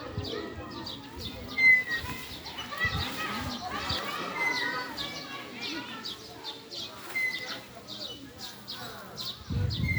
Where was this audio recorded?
in a residential area